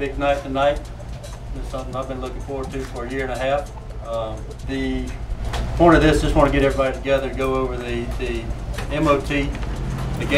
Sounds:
music, speech

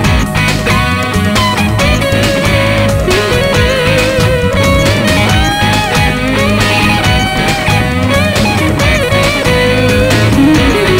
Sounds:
sampler, music

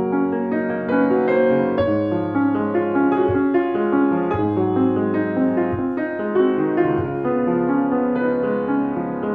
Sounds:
music, classical music

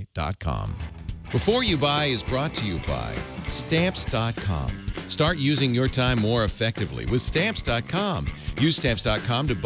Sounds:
music, speech

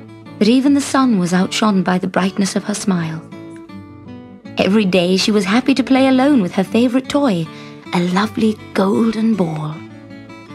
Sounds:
music, speech

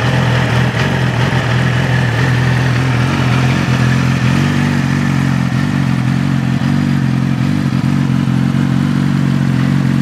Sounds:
medium engine (mid frequency), vroom, vehicle

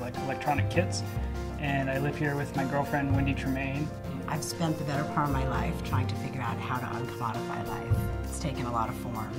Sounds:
music, speech

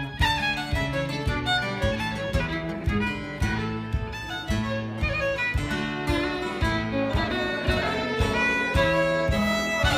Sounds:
musical instrument, music, violin

